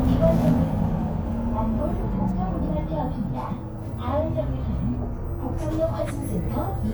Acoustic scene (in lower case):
bus